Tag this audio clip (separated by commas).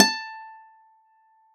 Music, Acoustic guitar, Plucked string instrument, Musical instrument, Guitar